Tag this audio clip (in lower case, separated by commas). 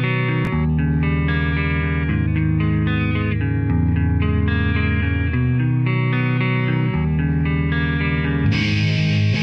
strum, plucked string instrument, guitar, musical instrument, music